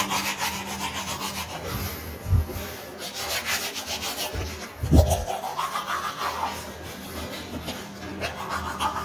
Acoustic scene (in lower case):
restroom